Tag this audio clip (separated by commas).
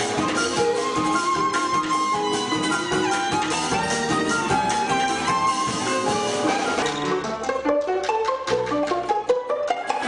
Music, Steelpan